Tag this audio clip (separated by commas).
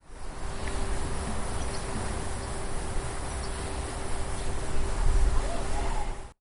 Animal, Bird, Wild animals